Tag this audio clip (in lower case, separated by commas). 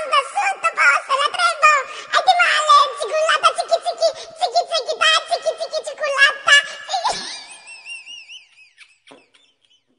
people giggling